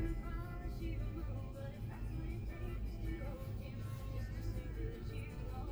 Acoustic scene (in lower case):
car